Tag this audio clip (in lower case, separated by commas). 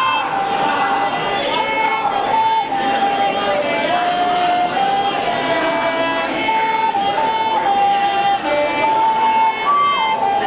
music, musical instrument, fiddle